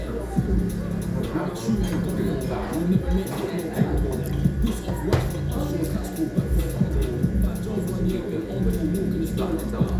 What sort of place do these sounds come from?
restaurant